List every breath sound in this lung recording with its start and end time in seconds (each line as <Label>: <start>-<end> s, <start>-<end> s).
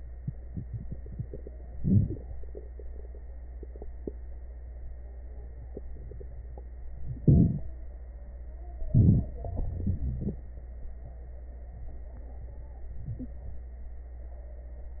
Inhalation: 1.76-2.17 s, 7.23-7.64 s, 8.93-9.27 s
Exhalation: 9.44-10.43 s
Wheeze: 9.44-10.43 s
Crackles: 7.23-7.64 s